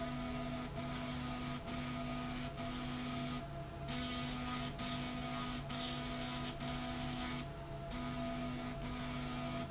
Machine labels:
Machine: slide rail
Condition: abnormal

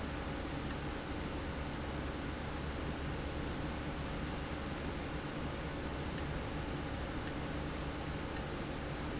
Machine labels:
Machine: valve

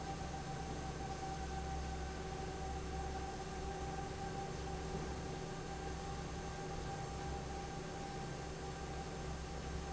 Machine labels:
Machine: fan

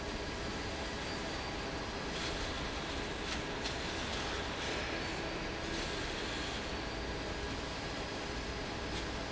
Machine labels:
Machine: fan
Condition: normal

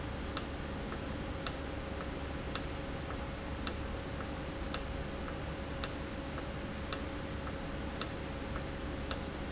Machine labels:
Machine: valve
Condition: normal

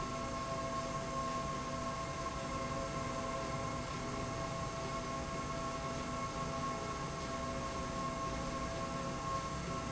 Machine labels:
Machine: slide rail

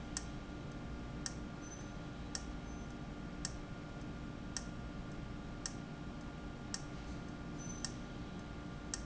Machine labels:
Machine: valve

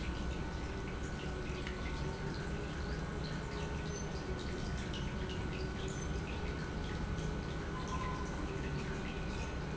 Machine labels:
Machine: pump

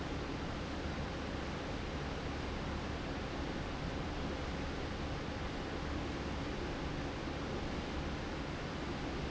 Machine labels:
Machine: fan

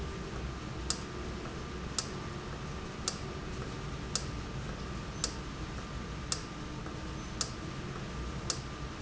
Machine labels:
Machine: valve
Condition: normal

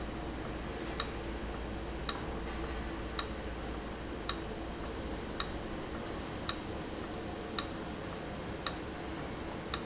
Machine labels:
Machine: valve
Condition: abnormal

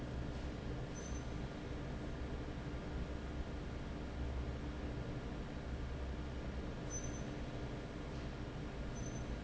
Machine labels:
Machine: fan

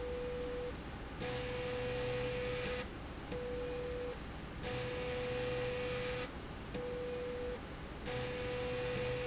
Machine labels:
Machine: slide rail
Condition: abnormal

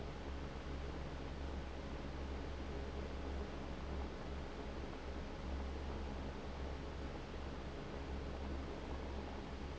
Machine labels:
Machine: fan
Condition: abnormal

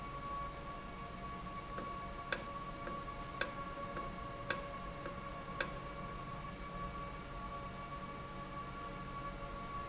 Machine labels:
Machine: valve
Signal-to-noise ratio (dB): 0 dB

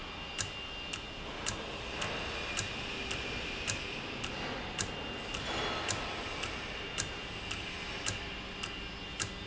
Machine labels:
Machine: valve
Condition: normal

